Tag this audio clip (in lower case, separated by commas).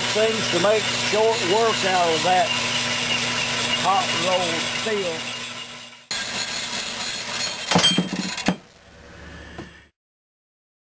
speech, engine, inside a large room or hall